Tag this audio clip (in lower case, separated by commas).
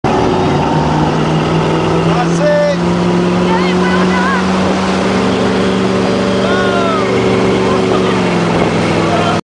speech